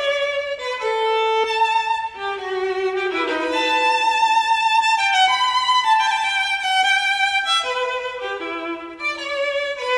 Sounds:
music
musical instrument

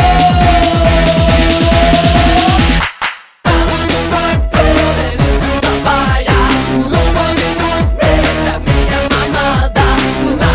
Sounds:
music

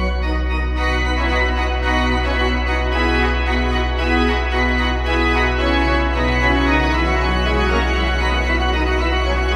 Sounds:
musical instrument
piano
keyboard (musical)
music

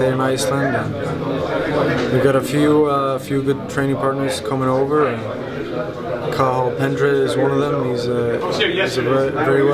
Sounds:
speech

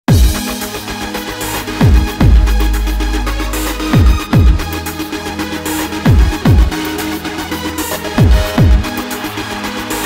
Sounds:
techno
trance music
music

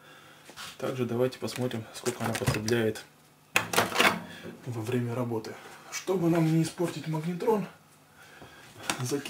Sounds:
speech

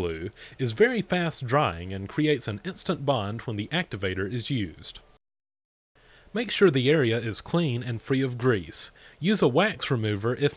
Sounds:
speech

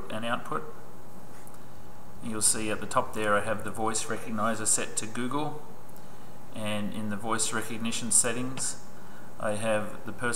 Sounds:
speech

